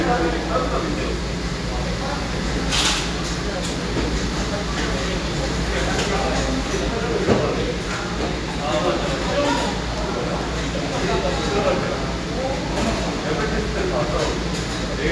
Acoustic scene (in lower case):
cafe